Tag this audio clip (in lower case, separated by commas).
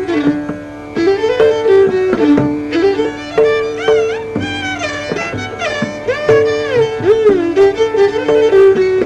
music, fiddle, musical instrument